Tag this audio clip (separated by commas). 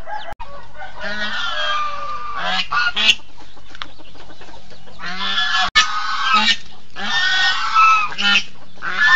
Chicken, Goose, goose honking, Cluck, Fowl, Honk